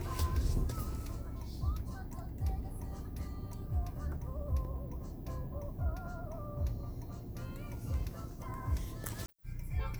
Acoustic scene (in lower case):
car